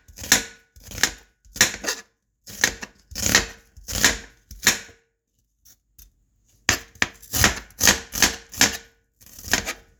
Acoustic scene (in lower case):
kitchen